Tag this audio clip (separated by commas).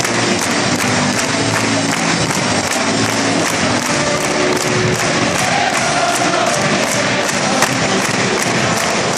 Music